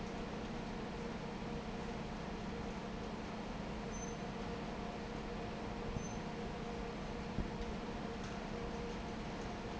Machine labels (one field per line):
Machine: fan